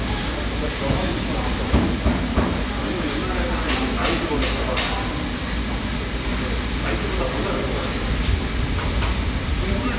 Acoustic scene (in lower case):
cafe